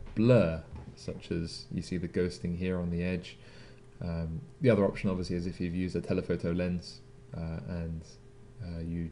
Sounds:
speech

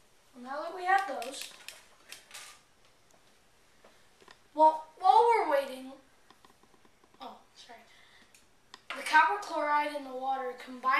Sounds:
inside a small room
speech

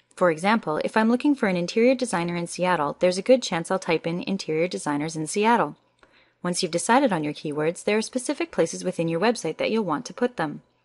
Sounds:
speech

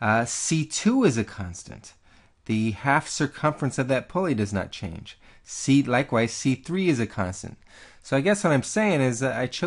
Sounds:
speech

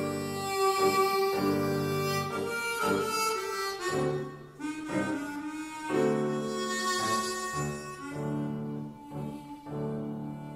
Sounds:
music

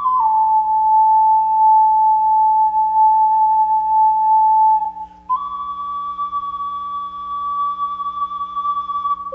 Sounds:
music

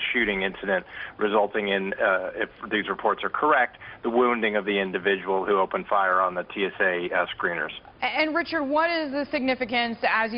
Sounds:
speech

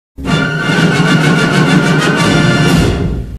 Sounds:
music

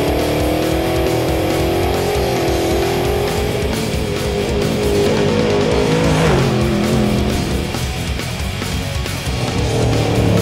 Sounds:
vehicle
car
music

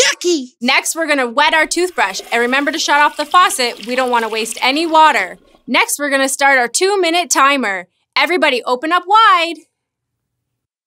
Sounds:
speech
child speech

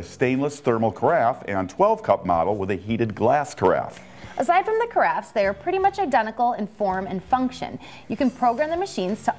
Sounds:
speech
music

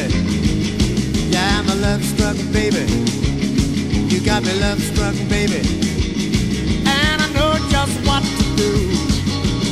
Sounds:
guitar
music
progressive rock
singing

